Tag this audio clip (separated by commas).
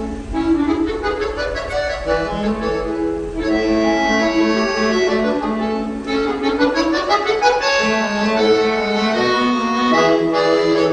Music, Musical instrument, Accordion